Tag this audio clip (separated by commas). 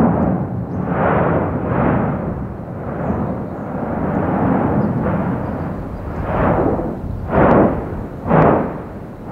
Eruption